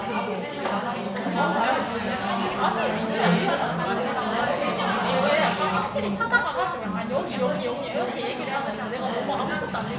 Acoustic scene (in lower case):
crowded indoor space